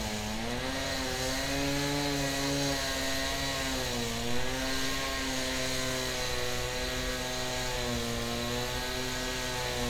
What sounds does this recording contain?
unidentified powered saw